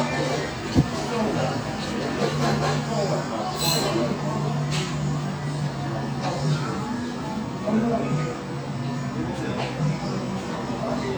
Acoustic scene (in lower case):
cafe